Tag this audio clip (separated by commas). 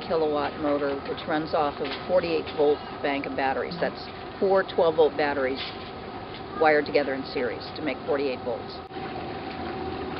Speech, Boat, Vehicle